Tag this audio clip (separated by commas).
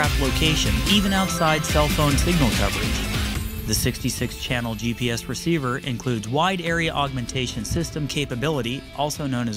Speech, Music